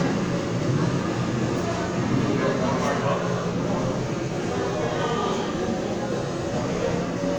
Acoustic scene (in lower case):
subway station